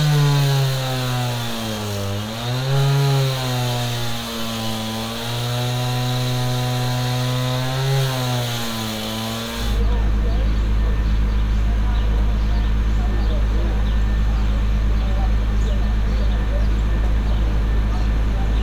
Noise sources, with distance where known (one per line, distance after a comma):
engine of unclear size